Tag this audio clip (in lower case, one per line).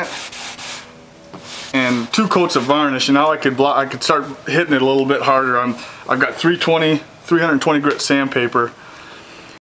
speech